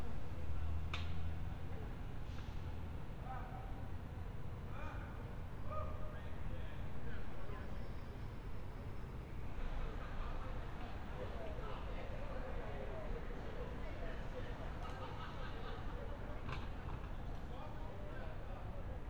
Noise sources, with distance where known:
unidentified human voice

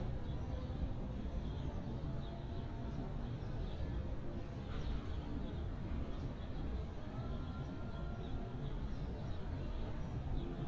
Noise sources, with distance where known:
music from a fixed source, far

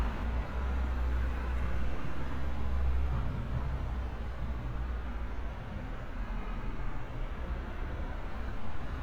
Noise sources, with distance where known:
engine of unclear size, near; car horn, far

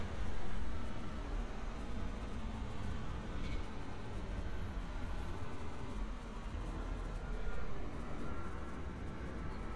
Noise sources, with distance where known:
background noise

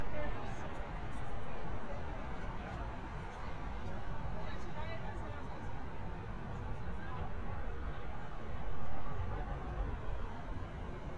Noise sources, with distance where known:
person or small group talking, far

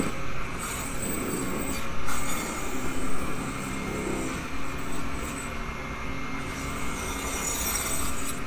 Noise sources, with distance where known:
rock drill

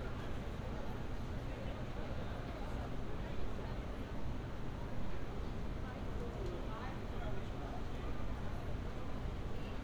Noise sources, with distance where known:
engine of unclear size; person or small group talking

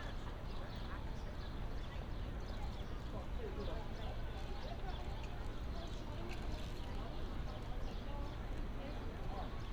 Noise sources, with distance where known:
person or small group talking

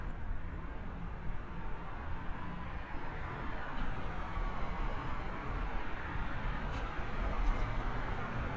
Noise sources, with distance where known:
medium-sounding engine

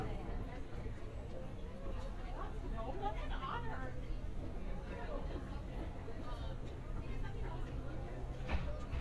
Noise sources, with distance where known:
person or small group talking

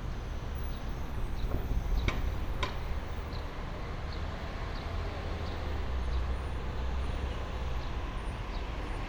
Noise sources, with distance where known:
large-sounding engine; non-machinery impact

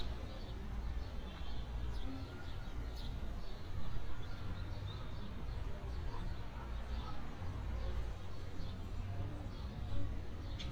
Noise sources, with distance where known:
dog barking or whining, far

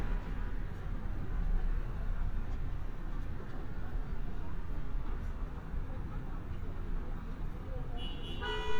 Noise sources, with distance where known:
car horn, near; car alarm, near

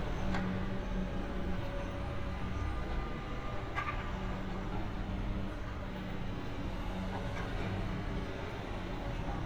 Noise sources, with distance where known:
car horn, far

